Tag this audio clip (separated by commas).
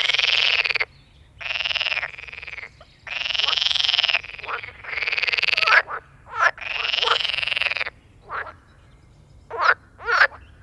frog croaking